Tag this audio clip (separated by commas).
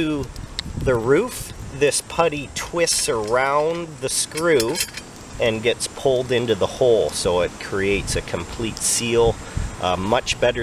Speech